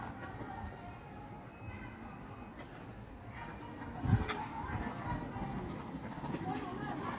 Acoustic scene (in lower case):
park